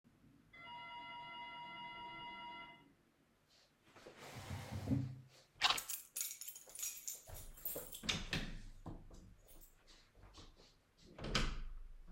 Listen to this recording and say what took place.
The doorbell rang. I picked up my keys, moved the chair and opened and closed the door to the hallway.